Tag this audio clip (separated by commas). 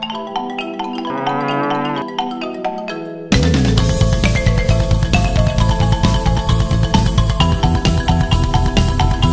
Music